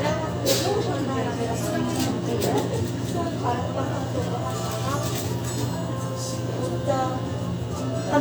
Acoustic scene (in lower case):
restaurant